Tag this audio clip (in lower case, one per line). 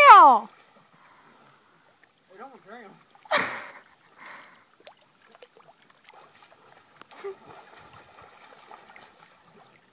speech
water